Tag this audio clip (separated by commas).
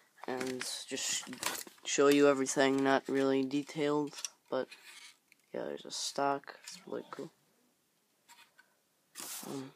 Speech, inside a small room